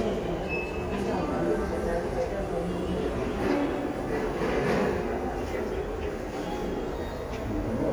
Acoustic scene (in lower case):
crowded indoor space